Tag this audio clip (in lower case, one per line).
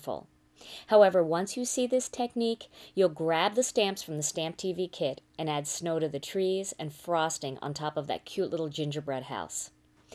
speech